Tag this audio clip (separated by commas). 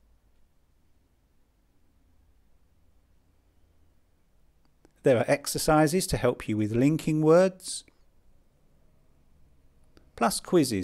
Speech